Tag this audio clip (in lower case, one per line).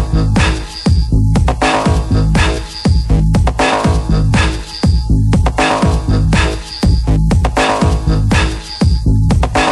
music
disco